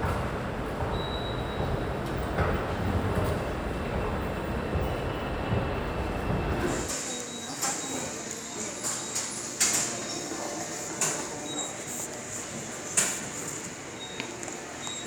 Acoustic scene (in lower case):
subway station